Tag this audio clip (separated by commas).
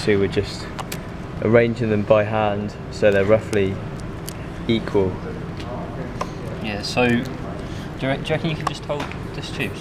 Speech